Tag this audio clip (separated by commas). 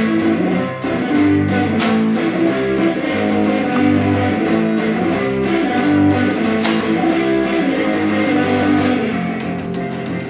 Music